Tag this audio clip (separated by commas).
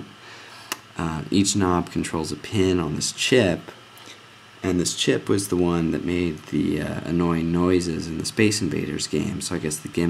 Speech